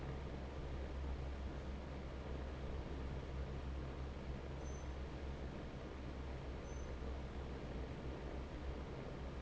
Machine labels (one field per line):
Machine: fan